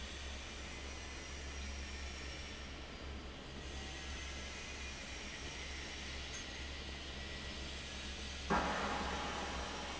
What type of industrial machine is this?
fan